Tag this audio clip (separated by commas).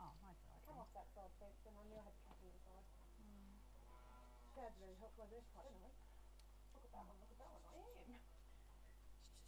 Speech